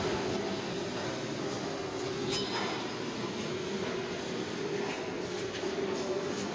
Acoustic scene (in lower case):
subway station